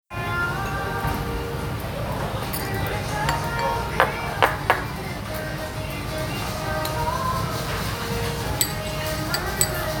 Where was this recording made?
in a restaurant